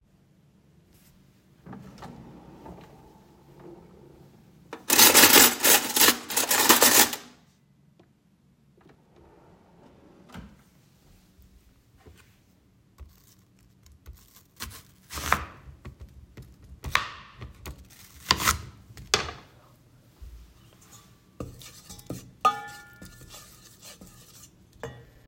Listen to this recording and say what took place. First, I opened a drawer and put some cutlery in it. Then I closed the drawer. After that, I chopped some vegetables and stirred them in a pot.